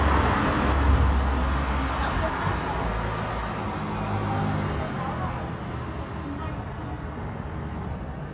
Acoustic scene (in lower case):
street